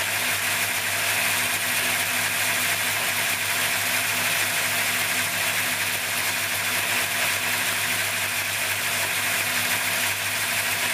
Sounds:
Engine

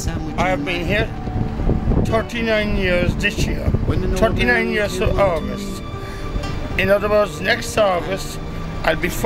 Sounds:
Speech, Music

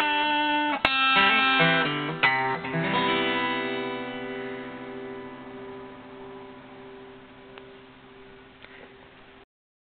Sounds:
Music

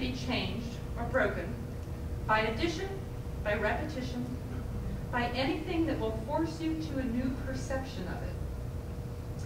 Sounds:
Female speech, Narration, Speech

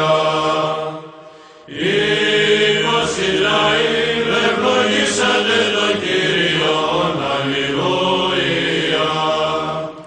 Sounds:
Vocal music, Chant

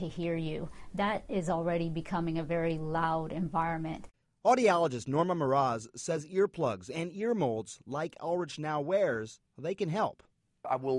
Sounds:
Speech

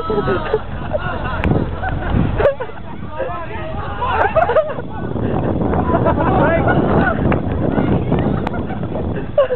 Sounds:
Speech

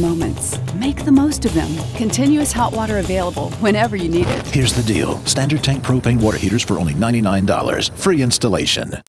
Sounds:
Music, Speech

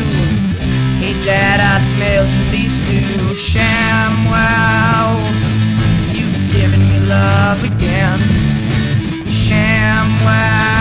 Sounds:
Music, Plucked string instrument, Guitar, Musical instrument

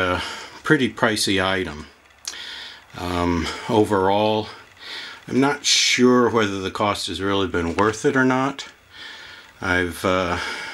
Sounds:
Speech

